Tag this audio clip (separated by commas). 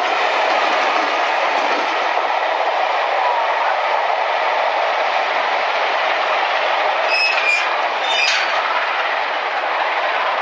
train whistling